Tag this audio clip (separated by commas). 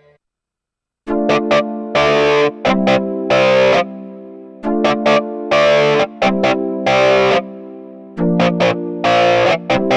Music, Effects unit, Synthesizer, Chorus effect, Musical instrument, Distortion, Keyboard (musical), Piano